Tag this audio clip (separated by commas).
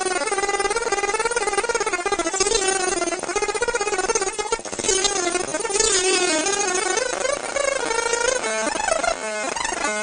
Sound effect